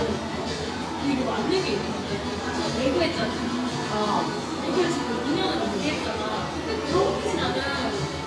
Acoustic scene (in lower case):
cafe